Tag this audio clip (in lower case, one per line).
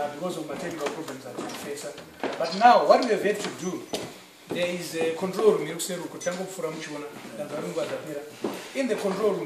man speaking
speech